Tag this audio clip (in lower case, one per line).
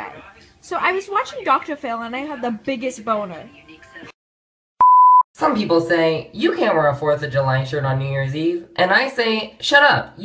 speech